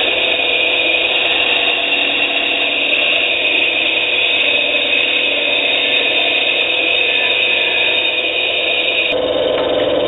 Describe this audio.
Vibrations and humming from a power tool